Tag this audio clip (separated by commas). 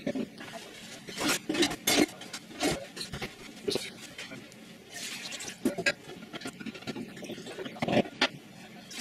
Speech